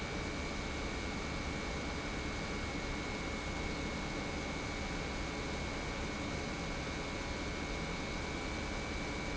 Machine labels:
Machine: pump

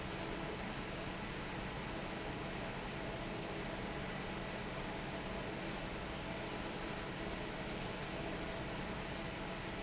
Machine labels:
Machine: fan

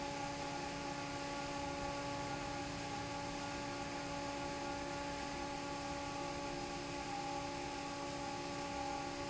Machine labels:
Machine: fan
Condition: normal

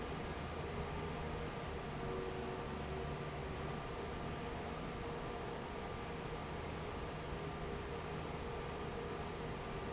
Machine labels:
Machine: fan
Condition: normal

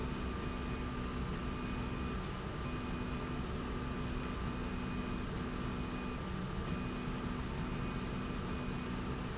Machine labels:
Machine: slide rail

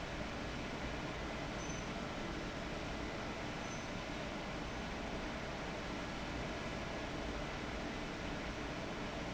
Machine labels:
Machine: fan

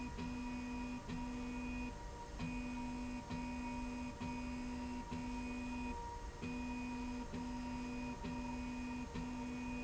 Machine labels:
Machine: slide rail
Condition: normal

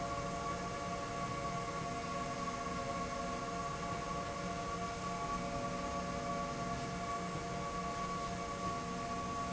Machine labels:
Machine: slide rail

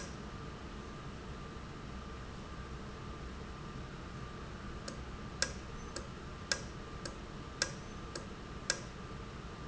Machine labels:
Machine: valve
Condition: normal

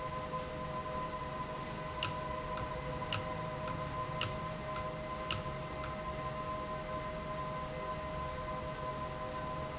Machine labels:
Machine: valve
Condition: abnormal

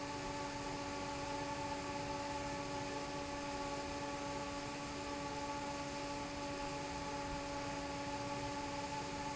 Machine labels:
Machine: fan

